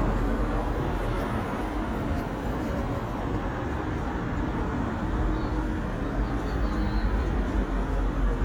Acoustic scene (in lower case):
street